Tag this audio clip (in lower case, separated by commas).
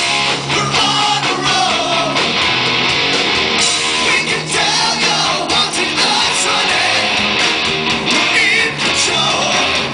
music, bang